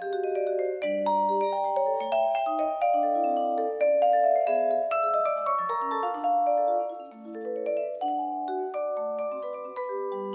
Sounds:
playing vibraphone

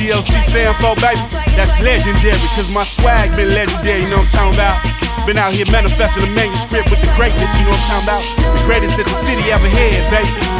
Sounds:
rapping, hip hop music, singing, music

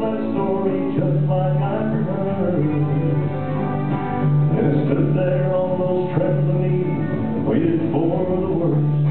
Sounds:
music, choir, male singing

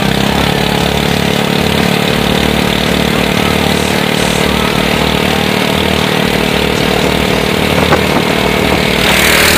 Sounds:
speedboat acceleration, boat, speedboat, vehicle

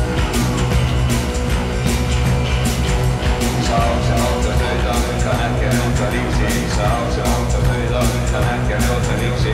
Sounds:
music, mantra

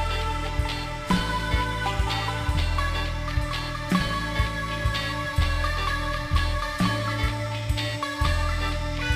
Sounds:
music

